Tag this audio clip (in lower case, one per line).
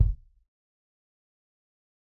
drum
bass drum
musical instrument
percussion
music